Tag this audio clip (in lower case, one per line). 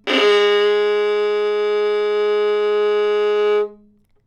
bowed string instrument
music
musical instrument